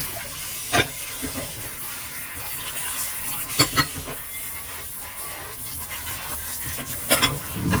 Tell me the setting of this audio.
kitchen